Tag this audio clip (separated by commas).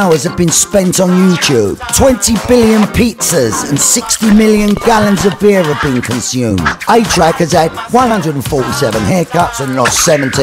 Speech, Music